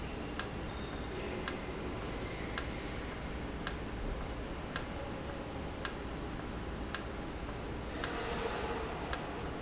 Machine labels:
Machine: valve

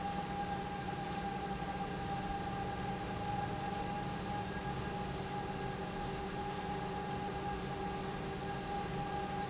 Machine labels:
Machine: pump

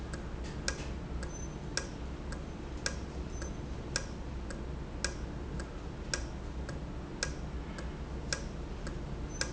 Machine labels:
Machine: valve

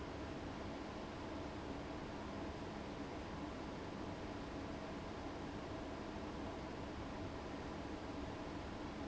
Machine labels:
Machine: fan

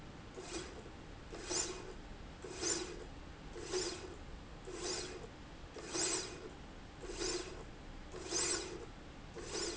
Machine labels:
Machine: slide rail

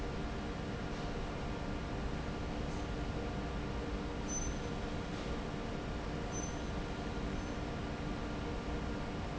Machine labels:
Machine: fan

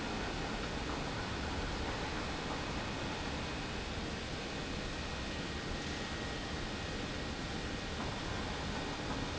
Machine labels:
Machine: pump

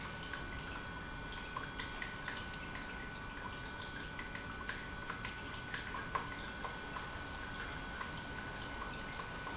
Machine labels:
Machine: pump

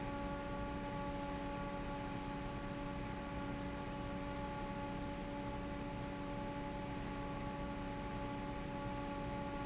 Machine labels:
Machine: fan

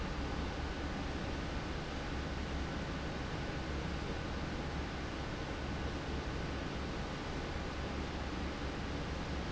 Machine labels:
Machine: fan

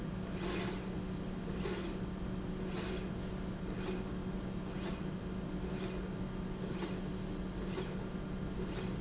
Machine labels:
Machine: slide rail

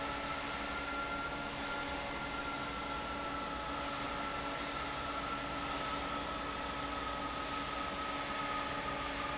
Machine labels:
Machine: fan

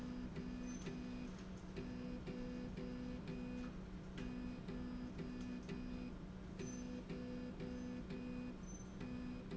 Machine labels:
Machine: slide rail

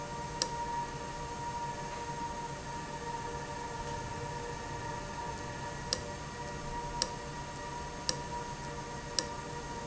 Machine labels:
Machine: valve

